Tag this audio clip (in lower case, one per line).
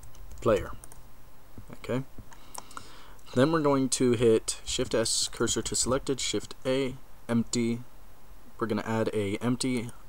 speech